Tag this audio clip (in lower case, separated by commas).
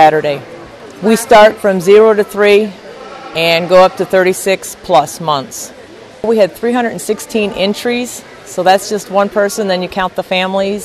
speech